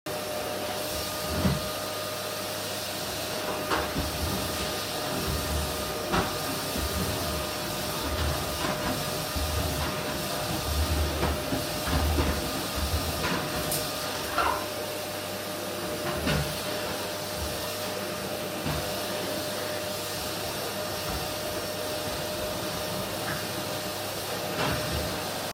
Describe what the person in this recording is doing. I held the phone while vacuuming the carpet in the living room.